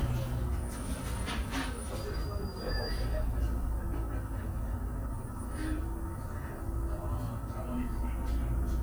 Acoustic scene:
bus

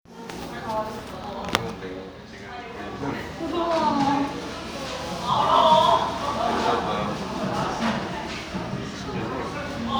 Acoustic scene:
crowded indoor space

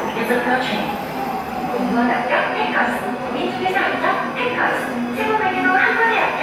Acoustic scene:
subway station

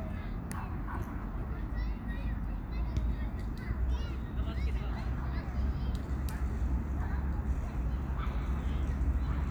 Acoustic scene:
park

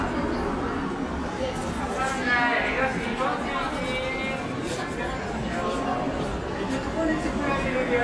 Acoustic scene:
cafe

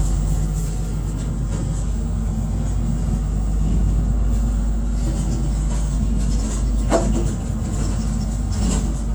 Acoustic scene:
bus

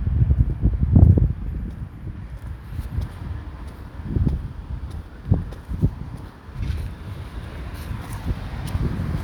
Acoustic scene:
residential area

